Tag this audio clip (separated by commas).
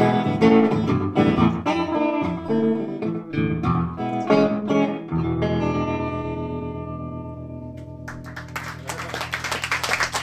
Musical instrument, Plucked string instrument, Music, Guitar